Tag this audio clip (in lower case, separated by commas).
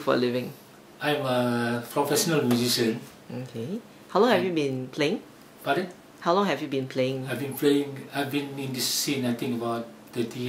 speech